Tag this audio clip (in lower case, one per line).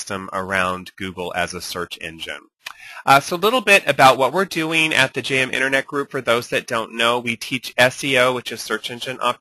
speech